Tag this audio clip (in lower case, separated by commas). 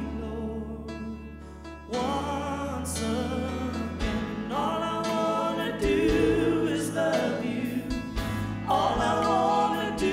music